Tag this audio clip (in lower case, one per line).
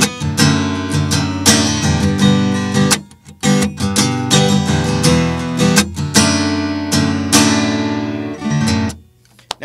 speech
strum
guitar
musical instrument
plucked string instrument
music
acoustic guitar